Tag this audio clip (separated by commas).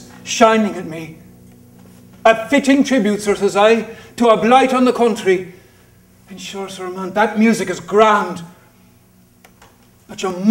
Speech